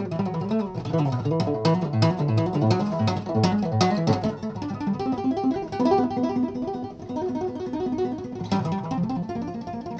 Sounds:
Plucked string instrument, Music

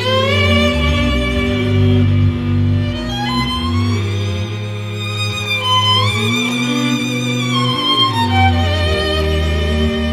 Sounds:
Music

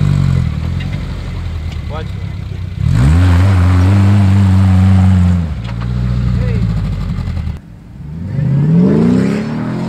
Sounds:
Speech

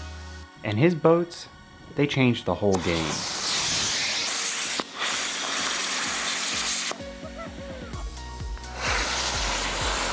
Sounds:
Speech, Music

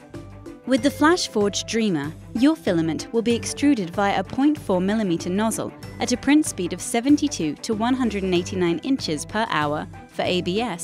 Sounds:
Speech, Music

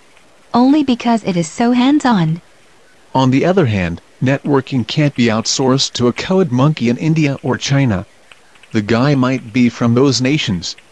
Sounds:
Speech synthesizer

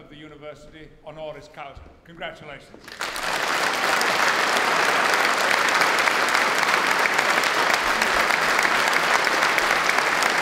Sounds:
Male speech, Speech, Narration

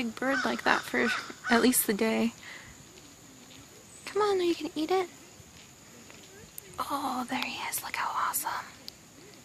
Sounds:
Whispering, Speech

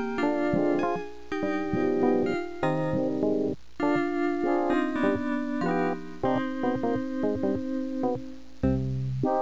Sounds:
Music

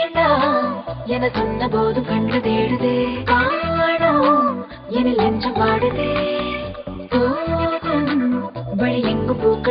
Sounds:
Music

